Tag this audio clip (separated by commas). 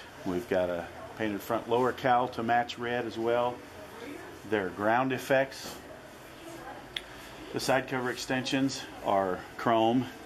Speech